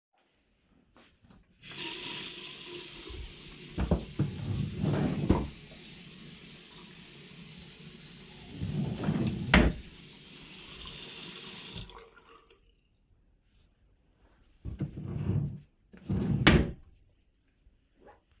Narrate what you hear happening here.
i turn on the water tap in the bathroom, open a drawer, then close it. i turn off the water, open the drawer again, and close it.